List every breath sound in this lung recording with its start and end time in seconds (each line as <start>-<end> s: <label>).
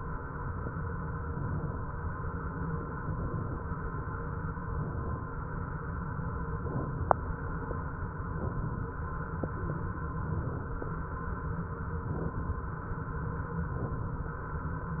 1.21-1.89 s: inhalation
2.87-3.56 s: inhalation
4.74-5.43 s: inhalation
6.53-7.22 s: inhalation
8.24-8.96 s: inhalation
10.17-10.90 s: inhalation
12.00-12.73 s: inhalation
13.73-14.46 s: inhalation